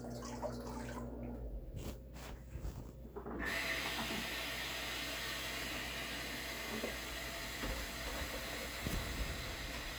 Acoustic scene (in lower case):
kitchen